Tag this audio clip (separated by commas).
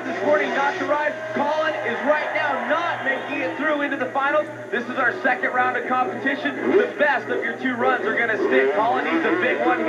Speech